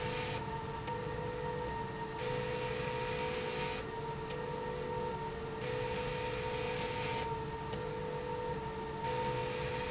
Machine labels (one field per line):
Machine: slide rail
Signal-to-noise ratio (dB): -6 dB